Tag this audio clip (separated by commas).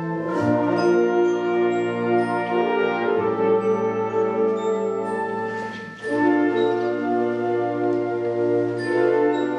Music